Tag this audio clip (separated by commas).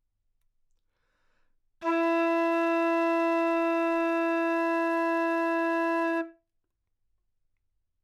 Wind instrument, Musical instrument, Music